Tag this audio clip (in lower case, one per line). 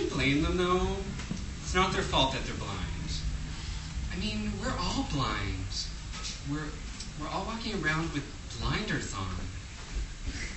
speech
monologue